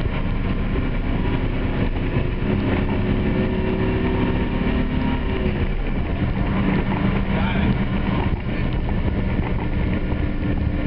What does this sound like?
A bus engine is revving up and a man speaks briefly at the end